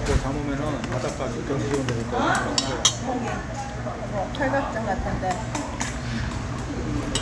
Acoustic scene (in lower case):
restaurant